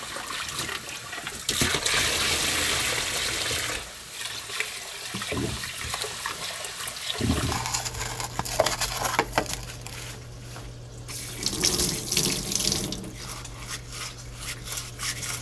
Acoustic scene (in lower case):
kitchen